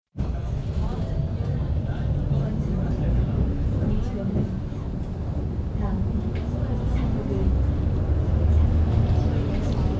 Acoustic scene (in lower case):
bus